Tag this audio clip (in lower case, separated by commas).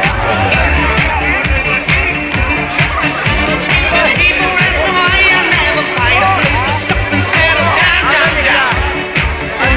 speech, music, female singing